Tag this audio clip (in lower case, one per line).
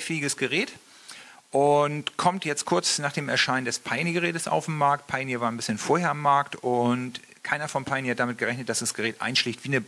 speech